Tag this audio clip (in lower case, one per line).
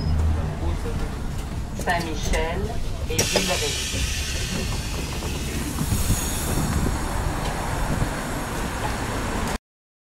mechanisms